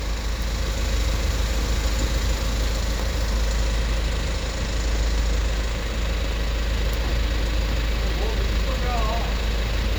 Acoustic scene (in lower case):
street